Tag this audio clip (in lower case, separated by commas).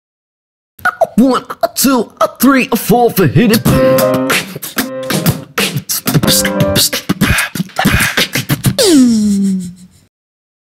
beatboxing, music, speech